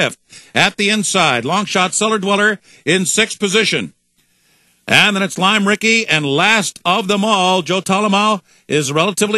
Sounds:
Speech

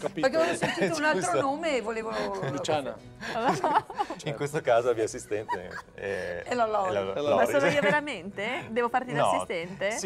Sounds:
Speech

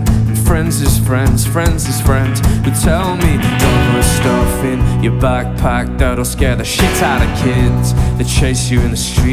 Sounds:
Music

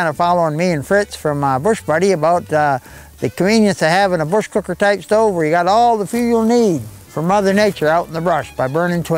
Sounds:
Music, Speech

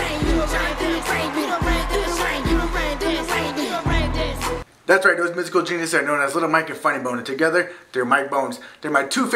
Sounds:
Speech, Music

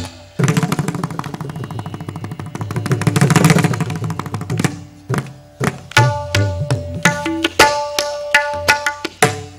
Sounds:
playing tabla

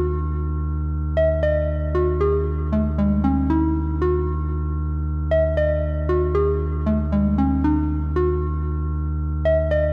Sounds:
Music

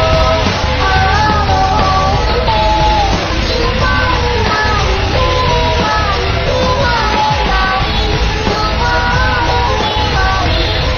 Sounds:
Music

